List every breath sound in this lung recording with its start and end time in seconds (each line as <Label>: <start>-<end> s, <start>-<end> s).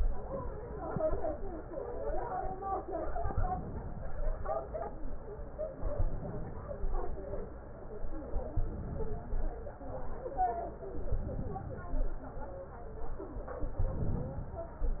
Inhalation: 3.23-4.12 s, 5.75-6.64 s, 8.59-9.52 s, 11.10-11.94 s, 13.79-14.51 s